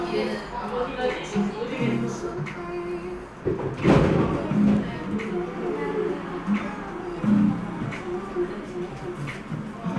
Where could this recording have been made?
in a cafe